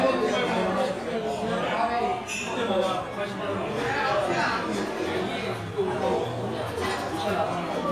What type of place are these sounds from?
crowded indoor space